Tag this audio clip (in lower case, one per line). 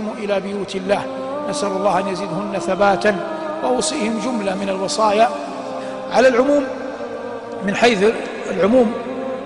speech
music